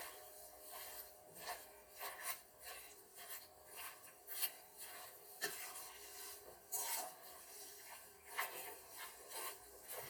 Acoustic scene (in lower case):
kitchen